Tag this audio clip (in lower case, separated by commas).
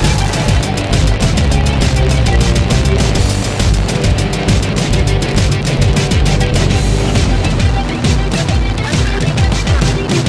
music